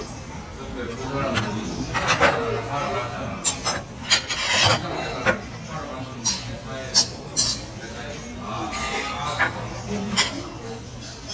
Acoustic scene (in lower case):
restaurant